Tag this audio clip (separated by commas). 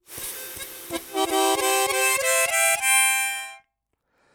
Musical instrument, Music, Harmonica